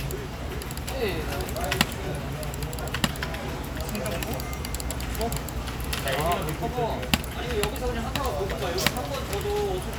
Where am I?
in a crowded indoor space